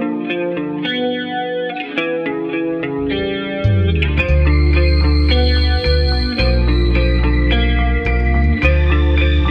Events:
0.0s-9.5s: music

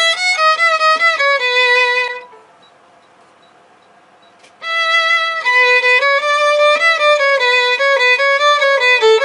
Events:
0.0s-2.3s: music
0.0s-9.2s: mechanisms
0.9s-1.0s: generic impact sounds
2.1s-2.2s: bleep
2.6s-2.7s: bleep
3.0s-3.0s: bleep
3.4s-3.5s: bleep
3.8s-3.9s: bleep
4.2s-4.3s: bleep
4.4s-4.5s: generic impact sounds
4.6s-9.2s: music
6.7s-6.8s: generic impact sounds

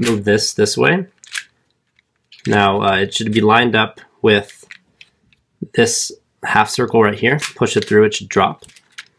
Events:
0.0s-1.1s: male speech
0.0s-9.1s: mechanisms
1.1s-1.5s: generic impact sounds
1.6s-1.7s: tick
1.8s-2.7s: generic impact sounds
2.4s-4.6s: male speech
4.4s-4.8s: generic impact sounds
5.0s-5.1s: generic impact sounds
5.3s-5.4s: generic impact sounds
5.6s-6.2s: male speech
6.4s-8.5s: male speech
6.8s-6.9s: tick
7.4s-8.0s: generic impact sounds
8.5s-9.1s: generic impact sounds

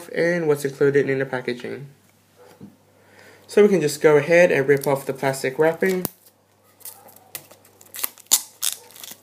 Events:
0.0s-9.2s: mechanisms
0.1s-1.9s: male speech
0.4s-0.7s: generic impact sounds
1.5s-1.6s: generic impact sounds
2.0s-2.1s: tick
2.3s-2.6s: bark
2.4s-2.7s: generic impact sounds
3.0s-3.4s: breathing
3.1s-3.2s: tick
3.4s-3.5s: tick
3.4s-6.1s: male speech
4.6s-4.8s: generic impact sounds
4.9s-5.5s: surface contact
5.6s-6.3s: tearing
6.4s-6.5s: tick
6.6s-9.2s: tearing
6.8s-7.3s: bark
8.7s-8.9s: bark

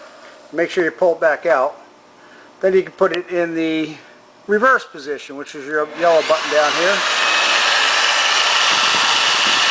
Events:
0.0s-9.7s: mechanisms
0.2s-0.3s: generic impact sounds
0.5s-1.8s: man speaking
0.7s-0.8s: generic impact sounds
0.9s-1.2s: surface contact
1.4s-1.5s: generic impact sounds
2.1s-2.4s: breathing
2.6s-3.9s: man speaking
3.0s-3.2s: generic impact sounds
3.8s-3.9s: generic impact sounds
3.9s-4.1s: breathing
4.4s-7.0s: man speaking

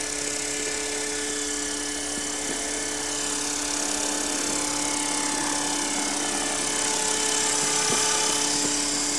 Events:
0.0s-9.1s: quadcopter
2.1s-2.5s: wind noise (microphone)
7.6s-8.3s: wind noise (microphone)

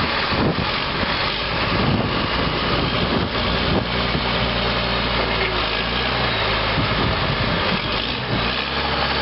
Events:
0.0s-9.2s: heavy engine (low frequency)
0.0s-9.2s: wind
0.3s-0.5s: wind noise (microphone)
1.6s-4.3s: wind noise (microphone)
6.7s-7.8s: wind noise (microphone)
8.2s-8.5s: wind noise (microphone)

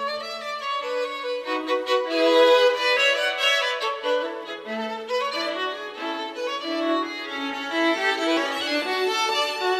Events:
0.0s-9.7s: music

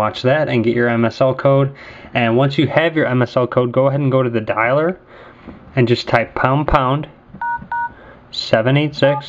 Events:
0.0s-1.7s: man speaking
0.0s-9.2s: mechanisms
1.7s-2.1s: breathing
2.1s-4.9s: man speaking
5.0s-5.4s: breathing
5.4s-5.6s: generic impact sounds
5.7s-7.0s: man speaking
7.3s-7.3s: tap
7.4s-7.6s: telephone dialing
7.6s-7.6s: tap
7.7s-7.9s: telephone dialing
7.9s-8.2s: breathing
8.3s-9.2s: man speaking
9.0s-9.2s: telephone dialing

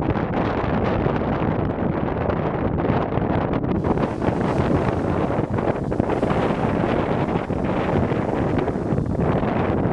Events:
0.0s-9.9s: wind noise (microphone)
3.8s-9.9s: eruption

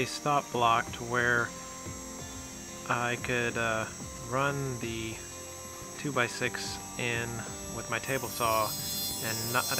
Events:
0.0s-0.4s: man speaking
0.0s-9.7s: music
0.0s-9.7s: circular saw
0.5s-0.9s: man speaking
1.0s-1.4s: man speaking
2.9s-3.8s: man speaking
4.3s-5.1s: man speaking
6.0s-6.7s: man speaking
7.0s-7.4s: man speaking
7.7s-8.7s: man speaking
9.2s-9.7s: man speaking

